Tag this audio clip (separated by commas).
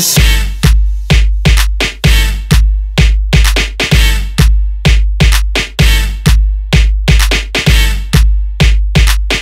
Music